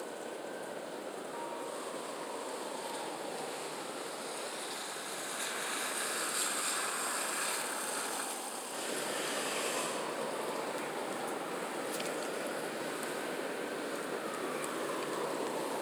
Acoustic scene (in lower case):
residential area